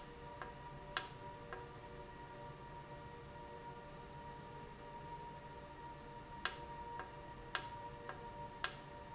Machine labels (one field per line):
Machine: valve